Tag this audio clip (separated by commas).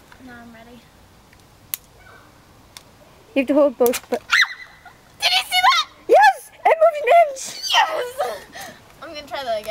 Speech